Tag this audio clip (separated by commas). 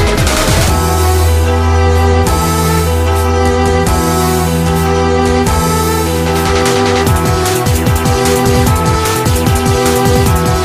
Music